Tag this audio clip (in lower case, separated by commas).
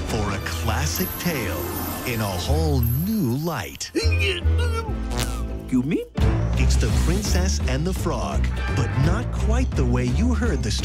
speech, music